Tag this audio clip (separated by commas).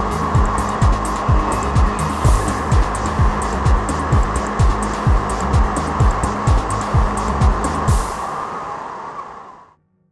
Rowboat, Music, Vehicle, Boat